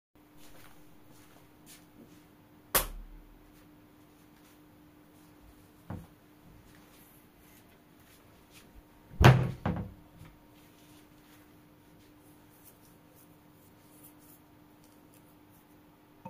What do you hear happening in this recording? Turning the light on, walking to my drawer, opening it, and scratching my beard